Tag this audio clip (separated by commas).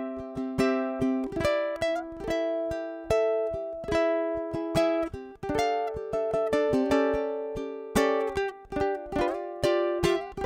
playing ukulele